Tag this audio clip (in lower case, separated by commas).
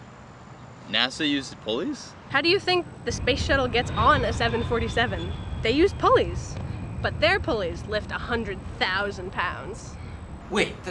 speech